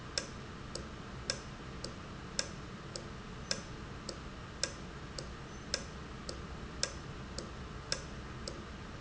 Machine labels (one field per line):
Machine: valve